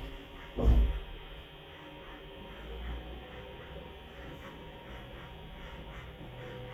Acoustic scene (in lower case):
elevator